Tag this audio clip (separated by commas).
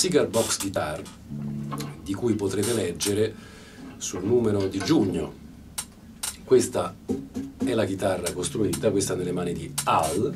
Speech, Music